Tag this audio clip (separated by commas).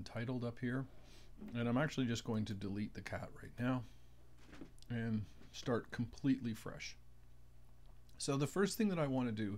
Speech